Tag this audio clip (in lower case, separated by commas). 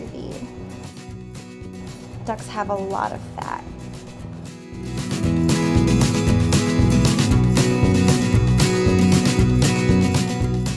speech, music